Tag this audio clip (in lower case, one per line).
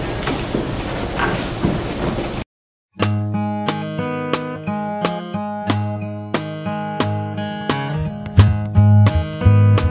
music
speech